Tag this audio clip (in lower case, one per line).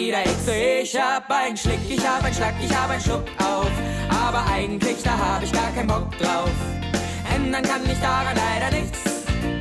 musical instrument
music